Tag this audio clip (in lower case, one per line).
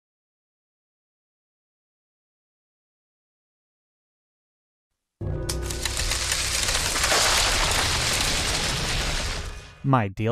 speech
silence
music